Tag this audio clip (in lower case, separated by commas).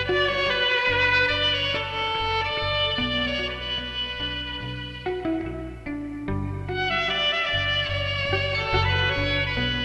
violin, musical instrument, music, pizzicato